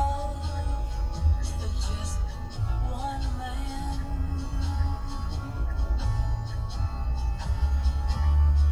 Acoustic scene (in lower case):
car